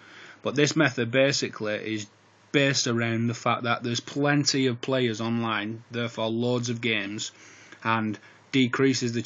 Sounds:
Speech

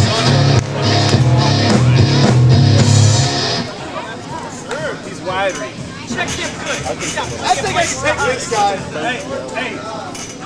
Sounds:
Speech, Music

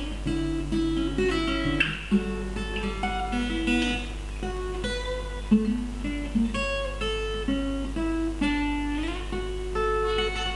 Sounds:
Progressive rock, Music

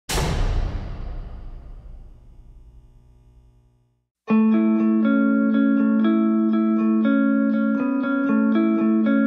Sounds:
Music, Electronic tuner

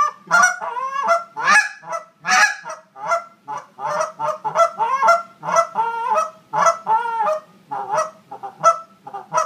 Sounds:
Honk

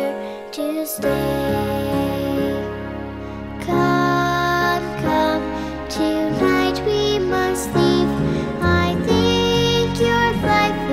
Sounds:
Lullaby, Music

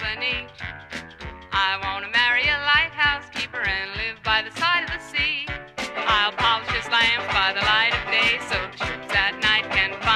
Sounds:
Music

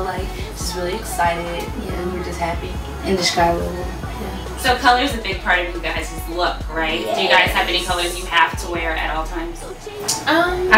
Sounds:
Music, Speech

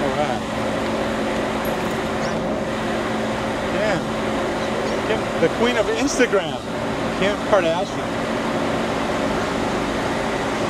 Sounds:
Car, Vehicle, Speech, outside, urban or man-made

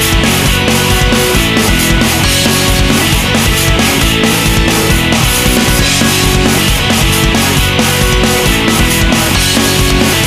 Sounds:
Music, Dance music

